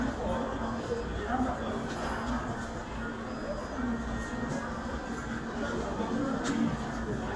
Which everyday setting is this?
crowded indoor space